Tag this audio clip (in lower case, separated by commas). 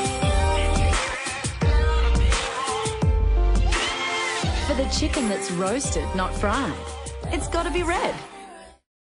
speech, music